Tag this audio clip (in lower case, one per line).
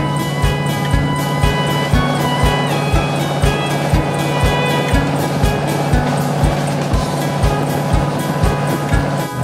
motorboat
music
vehicle